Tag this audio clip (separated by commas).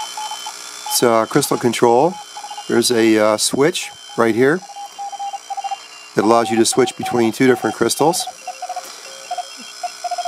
Speech